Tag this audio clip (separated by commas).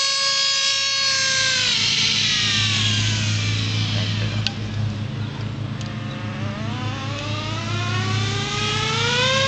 Speech